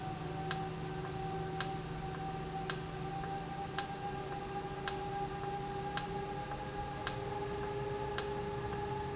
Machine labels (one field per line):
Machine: valve